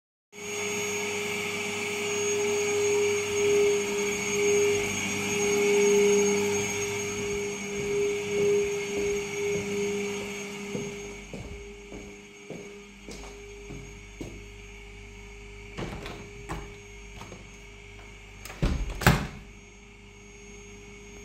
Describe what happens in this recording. The audio beings with the vacuum on, I walk past it with my recording device into the hallway then into the kitchen where I open the window.